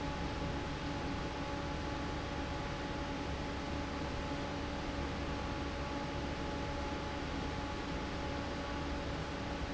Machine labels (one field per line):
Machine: fan